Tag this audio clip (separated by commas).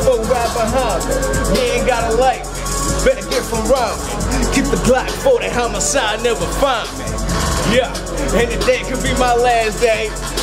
Music